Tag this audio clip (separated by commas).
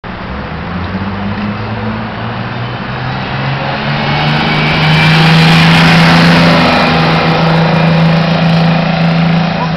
outside, urban or man-made, Vehicle, Bus